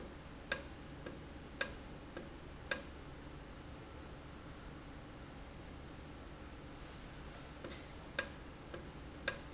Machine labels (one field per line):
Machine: valve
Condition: normal